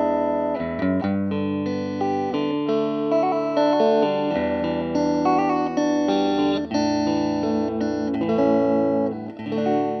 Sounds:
musical instrument, guitar, inside a small room, music

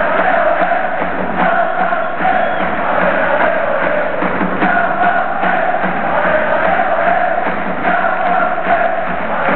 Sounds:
music

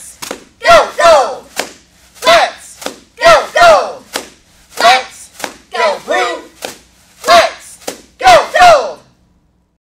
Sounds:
speech

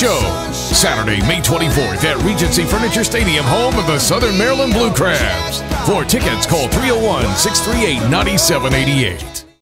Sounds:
speech, music, country

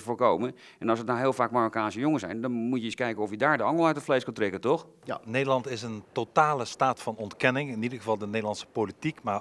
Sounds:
speech

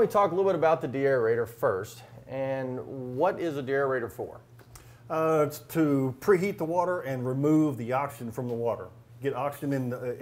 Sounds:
speech

